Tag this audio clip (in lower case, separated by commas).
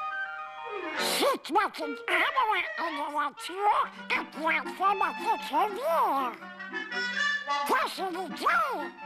speech, music